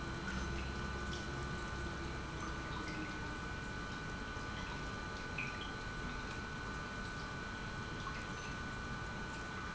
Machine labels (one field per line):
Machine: pump